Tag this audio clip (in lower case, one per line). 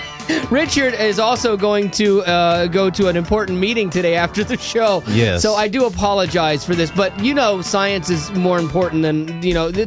speech
music